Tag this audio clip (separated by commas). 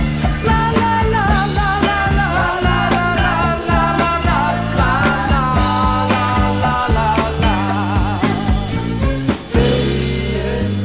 Music, Psychedelic rock